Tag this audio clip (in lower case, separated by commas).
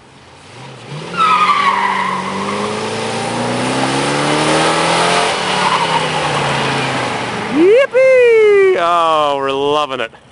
speech, vehicle, accelerating, medium engine (mid frequency), car